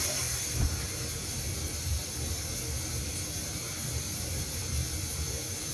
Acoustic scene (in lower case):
restroom